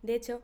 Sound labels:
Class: speech